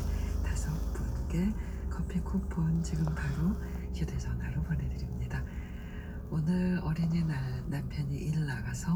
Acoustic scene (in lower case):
car